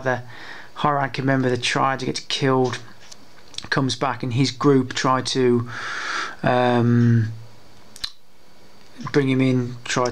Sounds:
Speech, inside a small room

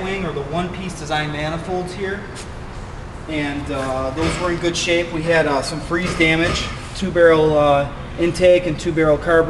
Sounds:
Speech

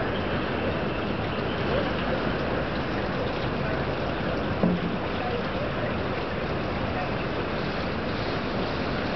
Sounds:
Sailboat, Speech

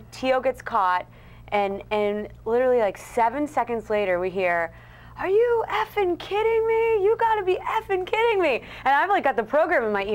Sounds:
Speech

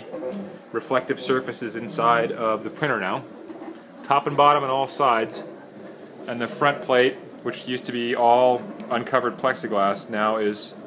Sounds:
Speech

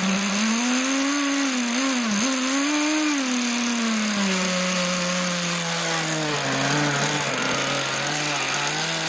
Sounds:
Vehicle

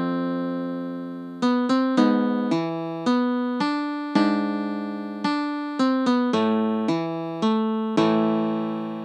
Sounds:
Music, Musical instrument

